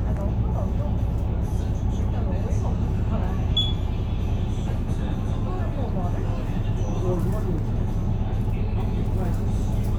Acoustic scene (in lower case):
bus